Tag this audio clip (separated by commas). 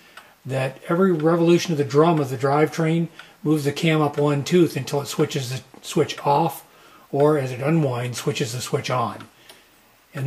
Speech